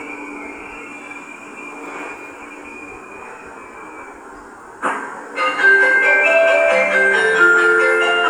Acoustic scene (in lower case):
subway station